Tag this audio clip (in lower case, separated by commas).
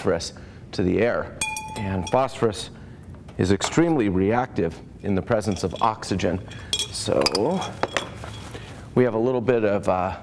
speech